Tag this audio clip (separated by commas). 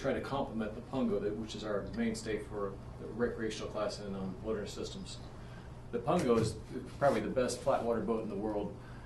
Speech